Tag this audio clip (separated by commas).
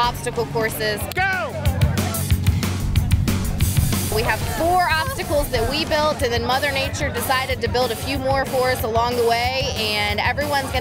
Music, Speech